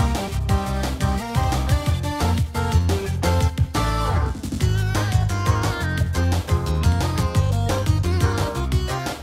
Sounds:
playing synthesizer

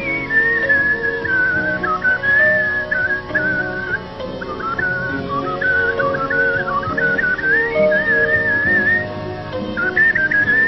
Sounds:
whistling, music, people whistling

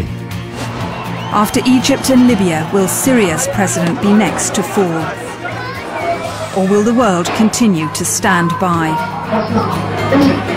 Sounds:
music, speech

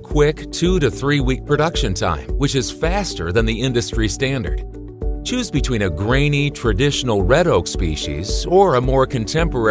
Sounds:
music, speech

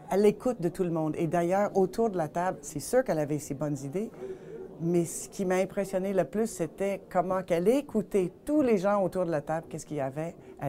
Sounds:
speech

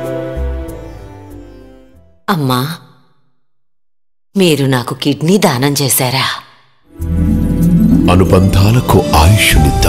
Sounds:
speech, music

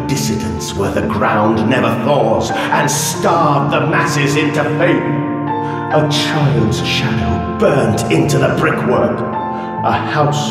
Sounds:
music, speech

